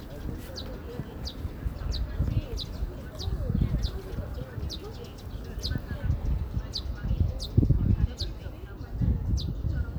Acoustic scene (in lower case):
park